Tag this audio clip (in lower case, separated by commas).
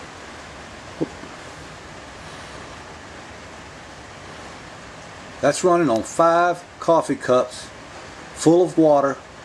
speech